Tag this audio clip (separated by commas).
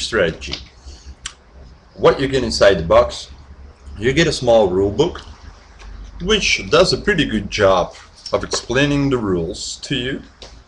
Speech